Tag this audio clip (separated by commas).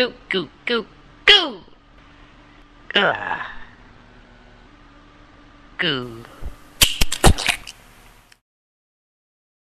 Speech